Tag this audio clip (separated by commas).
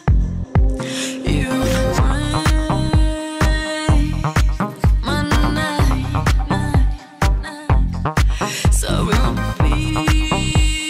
Music